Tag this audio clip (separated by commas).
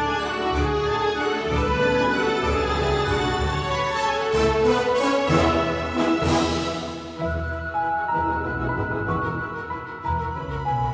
Music